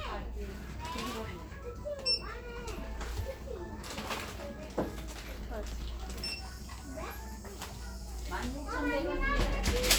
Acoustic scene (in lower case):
crowded indoor space